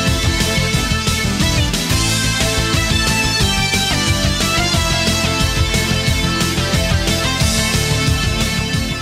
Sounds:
Music

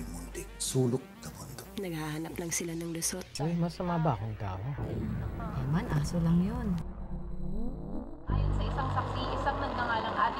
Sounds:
Speech, Music

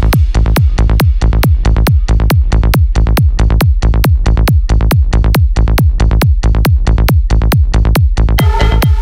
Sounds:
Music

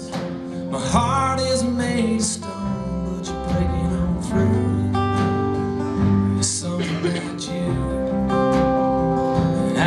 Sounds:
Music

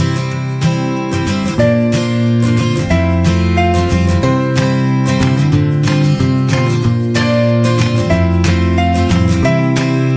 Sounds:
Musical instrument, Acoustic guitar, Music, Plucked string instrument, Guitar

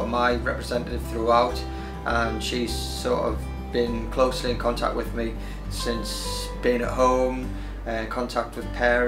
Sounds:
Music, Speech

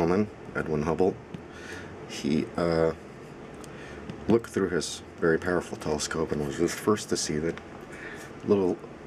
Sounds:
Speech

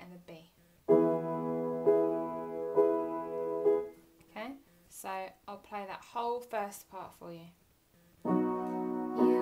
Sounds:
Independent music, Music, Keyboard (musical), Piano, Musical instrument, Speech, Electric piano

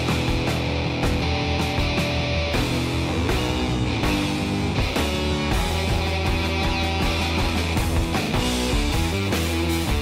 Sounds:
Punk rock

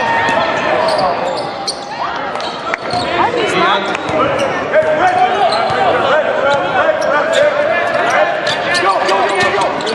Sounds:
Basketball bounce

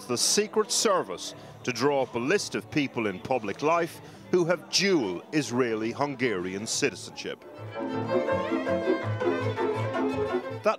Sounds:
Music, Speech, Bowed string instrument

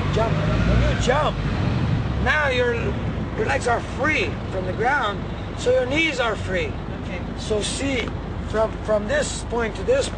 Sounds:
outside, urban or man-made, Speech

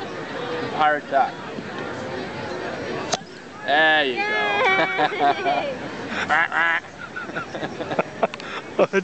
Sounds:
Speech

